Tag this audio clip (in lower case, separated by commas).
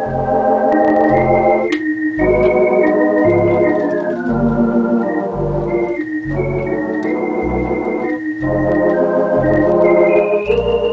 electronic organ, music, playing electronic organ